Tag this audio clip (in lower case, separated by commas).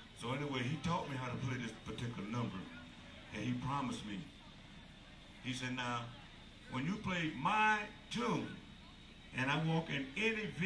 speech